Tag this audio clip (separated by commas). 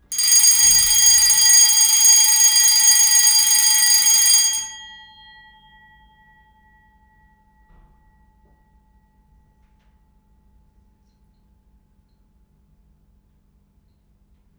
Alarm